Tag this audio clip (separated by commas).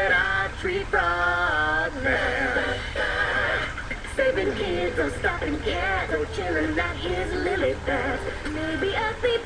Music